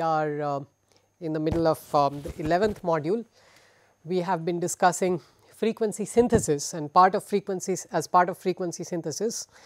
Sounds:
speech

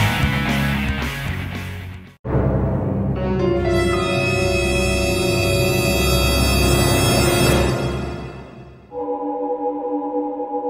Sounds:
scary music
music

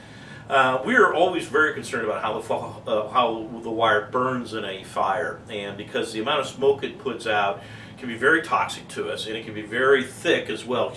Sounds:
speech

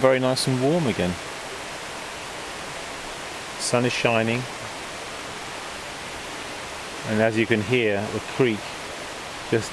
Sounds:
outside, rural or natural
pink noise
speech

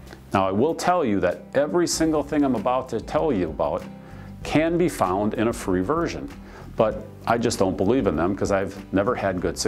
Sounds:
speech
music

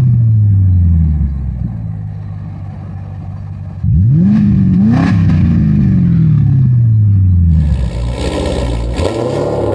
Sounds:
car passing by

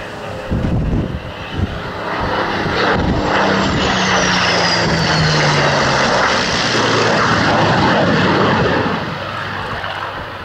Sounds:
airplane flyby

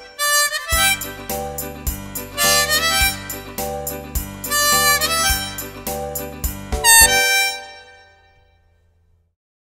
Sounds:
music
harmonica

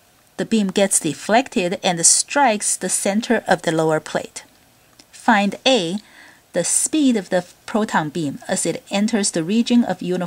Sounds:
speech

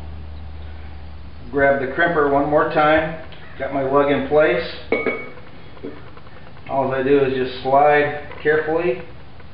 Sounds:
speech

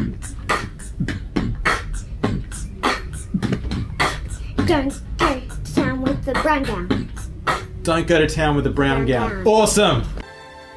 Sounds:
beatboxing
speech

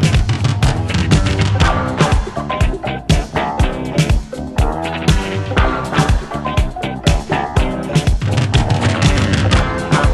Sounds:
music
disco

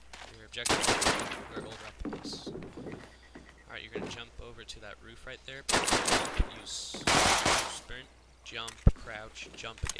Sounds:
speech

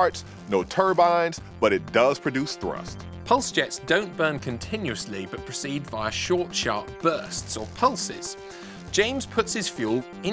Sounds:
speech
music

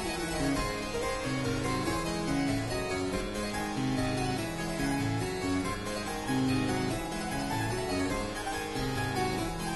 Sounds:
playing harpsichord

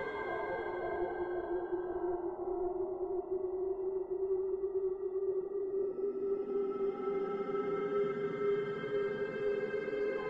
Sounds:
music
ambient music
electronic music

